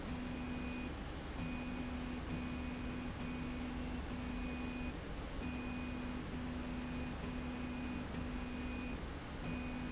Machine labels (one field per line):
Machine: slide rail